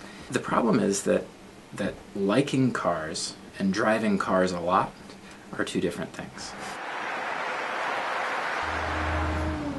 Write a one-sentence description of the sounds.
A man is speaking in a monologue then a car is passing by at high speed